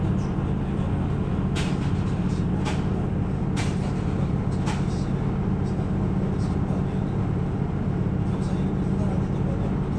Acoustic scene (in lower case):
bus